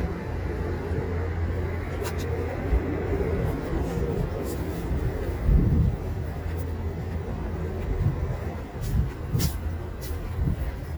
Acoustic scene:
residential area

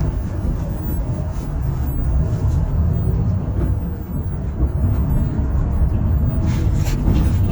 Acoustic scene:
bus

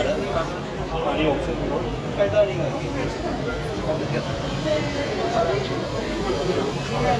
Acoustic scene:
crowded indoor space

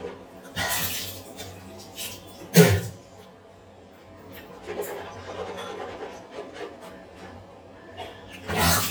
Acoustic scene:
restroom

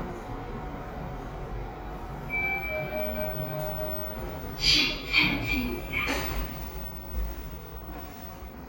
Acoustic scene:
elevator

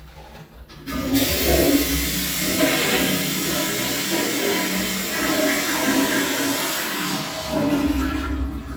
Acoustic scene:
restroom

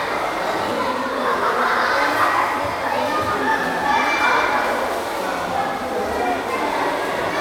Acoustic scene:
crowded indoor space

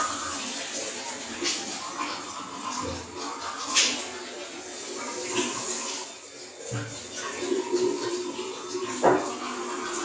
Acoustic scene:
restroom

